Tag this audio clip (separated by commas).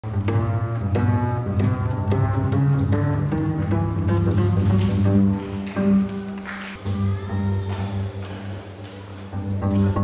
playing double bass